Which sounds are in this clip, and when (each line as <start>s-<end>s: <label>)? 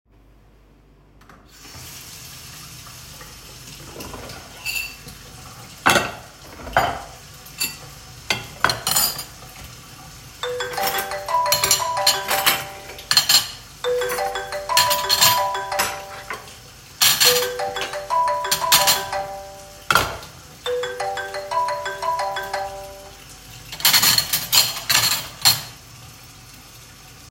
1.4s-27.3s: running water
6.7s-7.2s: cutlery and dishes
7.5s-7.8s: cutlery and dishes
8.2s-9.5s: cutlery and dishes
10.2s-20.4s: cutlery and dishes
10.3s-23.2s: phone ringing
23.7s-25.8s: cutlery and dishes